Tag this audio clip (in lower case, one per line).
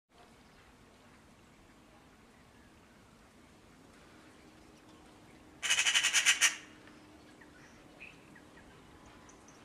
magpie calling